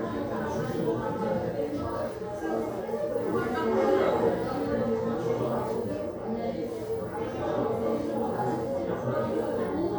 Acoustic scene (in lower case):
crowded indoor space